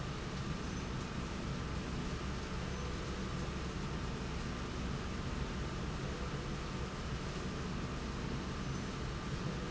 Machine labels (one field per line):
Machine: slide rail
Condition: normal